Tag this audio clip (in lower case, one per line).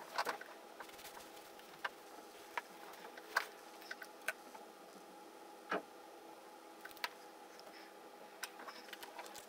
inside a small room